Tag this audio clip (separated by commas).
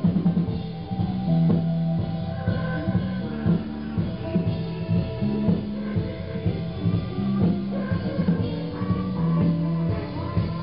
Music, Progressive rock